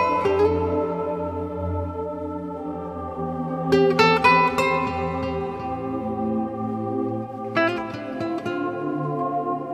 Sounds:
Music

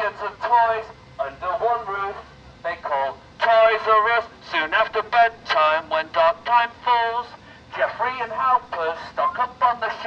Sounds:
Speech, outside, urban or man-made

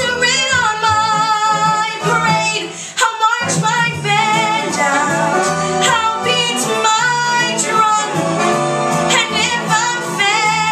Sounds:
Female singing, Music

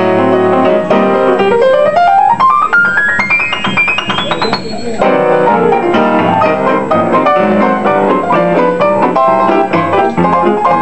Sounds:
Music, Speech

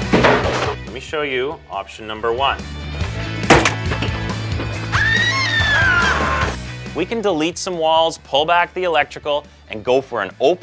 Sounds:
Speech, Music

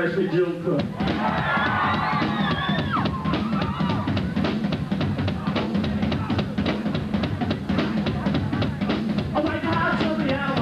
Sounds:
Music, Speech

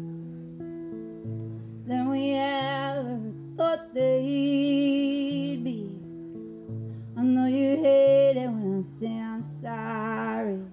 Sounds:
Music

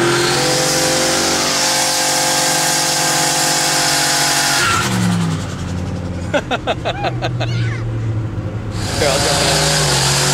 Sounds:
Vehicle, Car, Speech

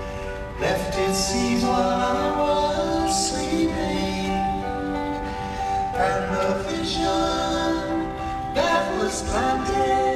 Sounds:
Music

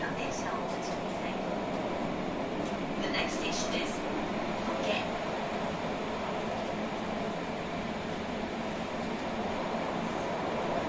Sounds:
Speech, Rail transport

